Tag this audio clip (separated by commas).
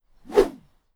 swish